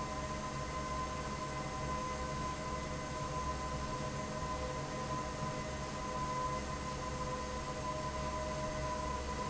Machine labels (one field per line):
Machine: fan